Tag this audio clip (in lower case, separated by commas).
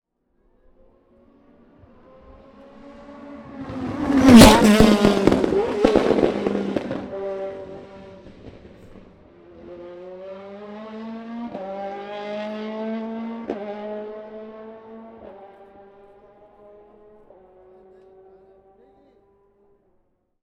revving, race car, vehicle, motor vehicle (road), car, engine